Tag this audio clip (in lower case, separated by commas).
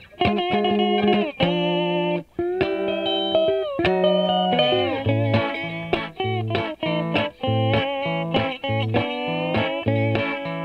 effects unit, music